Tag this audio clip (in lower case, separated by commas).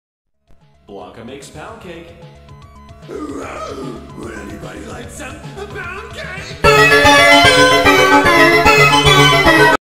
electronic music, techno, speech, music